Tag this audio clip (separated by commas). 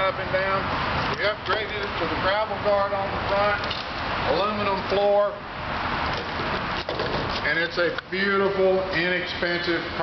Speech, Vehicle, Motor vehicle (road)